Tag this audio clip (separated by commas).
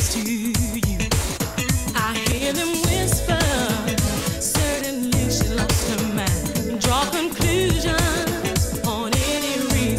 Music